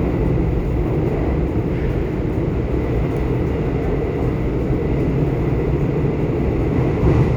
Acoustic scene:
subway train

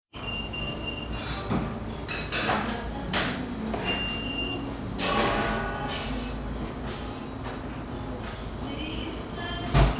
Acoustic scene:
cafe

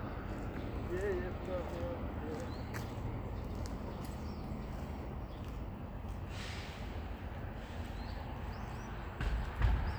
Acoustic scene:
street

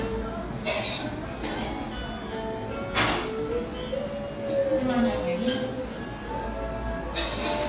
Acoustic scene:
cafe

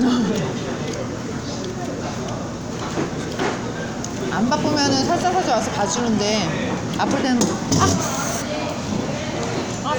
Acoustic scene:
crowded indoor space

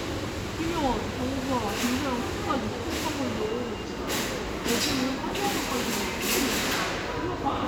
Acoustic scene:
crowded indoor space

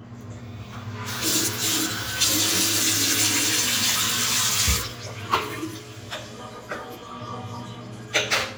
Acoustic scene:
restroom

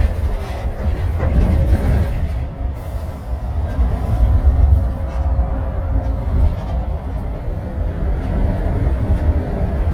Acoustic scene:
bus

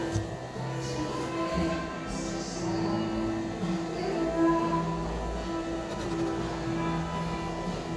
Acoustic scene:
cafe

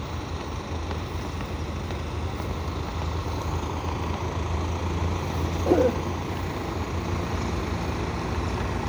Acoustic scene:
street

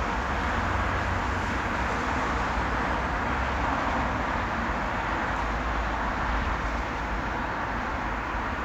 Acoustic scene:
street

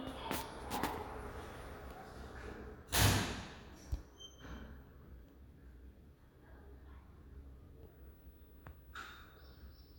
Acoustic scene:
elevator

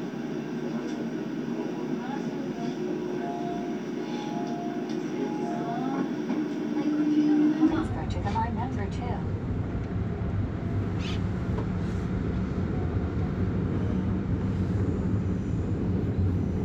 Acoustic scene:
subway train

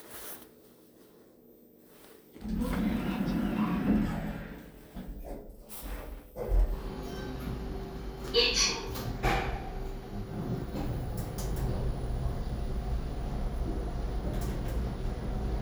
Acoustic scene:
elevator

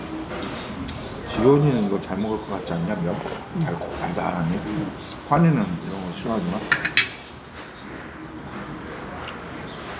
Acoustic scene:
restaurant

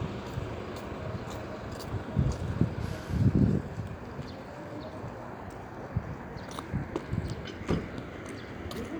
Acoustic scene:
street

